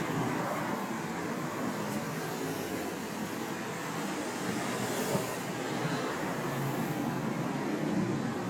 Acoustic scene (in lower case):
street